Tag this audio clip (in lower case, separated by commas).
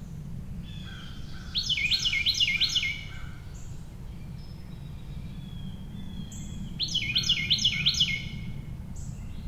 bird chirping